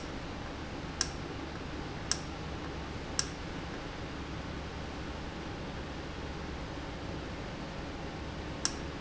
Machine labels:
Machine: valve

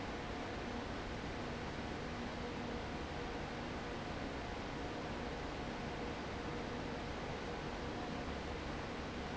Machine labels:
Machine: fan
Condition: abnormal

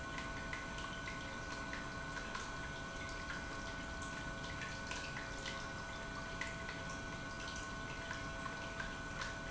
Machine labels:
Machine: pump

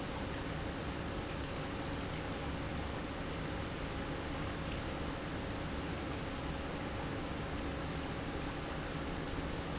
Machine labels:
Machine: pump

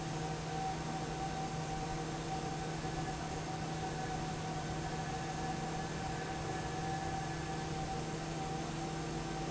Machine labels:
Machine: fan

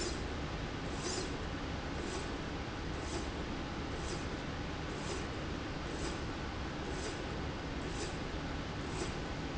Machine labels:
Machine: slide rail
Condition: normal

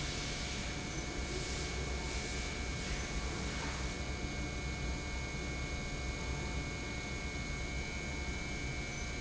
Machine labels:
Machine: pump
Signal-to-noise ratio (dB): -6 dB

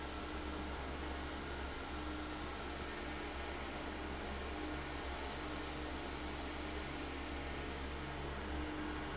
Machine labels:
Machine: fan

